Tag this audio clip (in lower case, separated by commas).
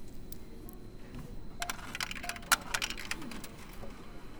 coin (dropping), home sounds